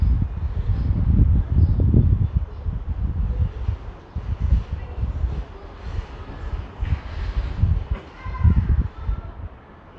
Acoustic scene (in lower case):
residential area